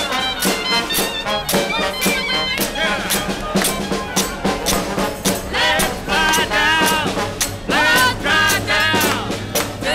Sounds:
Music

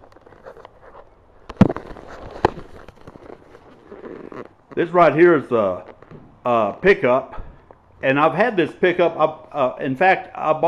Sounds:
Speech

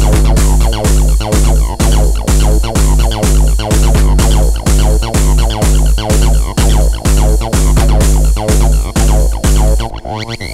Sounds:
Drum machine, Electronic music, Music

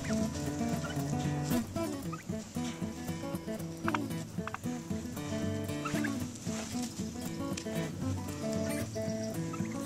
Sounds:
Gobble, Fowl, Turkey

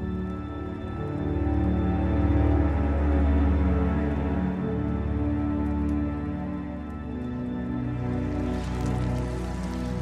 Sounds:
inside a small room, Music

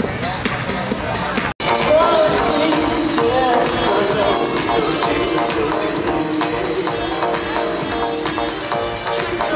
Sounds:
Music

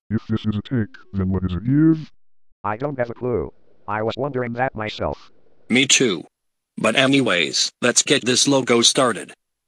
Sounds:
Speech synthesizer

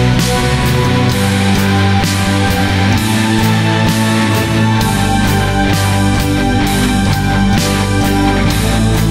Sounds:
Music, Progressive rock

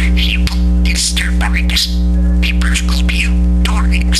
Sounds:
Speech

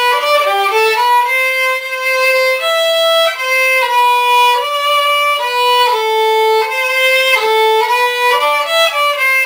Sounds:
Musical instrument, Music, fiddle

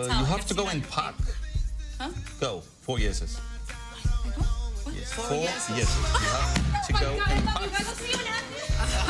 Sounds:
Laughter

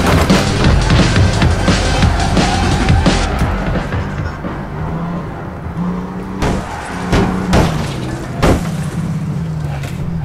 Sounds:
Music

